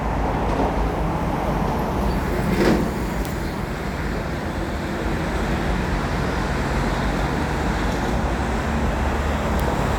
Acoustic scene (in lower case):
street